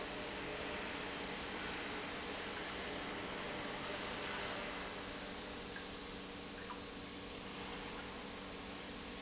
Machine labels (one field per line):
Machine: pump